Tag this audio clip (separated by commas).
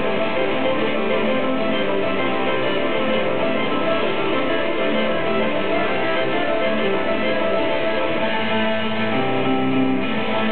Musical instrument, Plucked string instrument, Guitar, Music